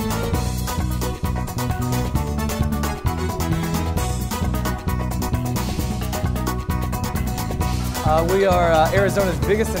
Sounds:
Music, Speech

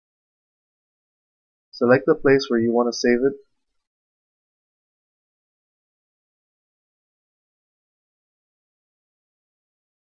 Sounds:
Speech

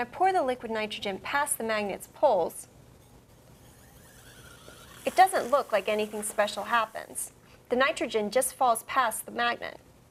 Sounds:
Speech

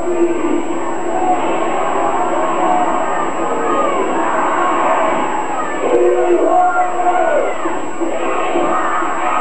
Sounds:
Vehicle, Speech

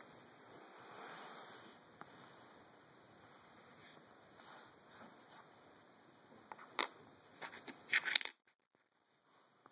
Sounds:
Coin (dropping)

